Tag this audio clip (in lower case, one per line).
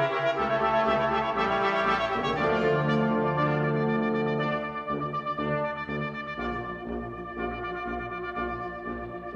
trombone
trumpet
brass instrument